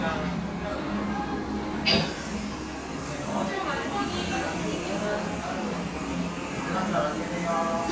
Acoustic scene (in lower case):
cafe